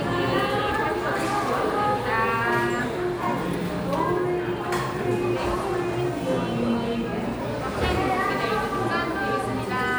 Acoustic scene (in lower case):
crowded indoor space